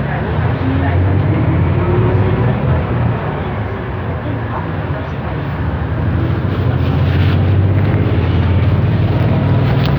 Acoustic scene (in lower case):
bus